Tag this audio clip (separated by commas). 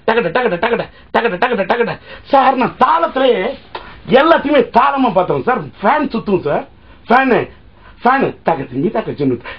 Speech